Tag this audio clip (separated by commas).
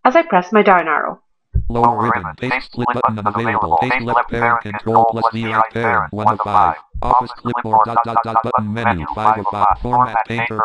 Speech, inside a small room